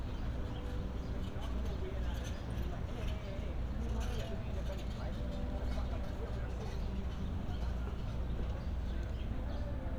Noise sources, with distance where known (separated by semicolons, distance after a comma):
person or small group talking